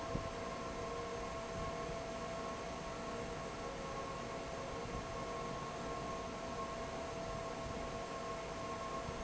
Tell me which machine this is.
fan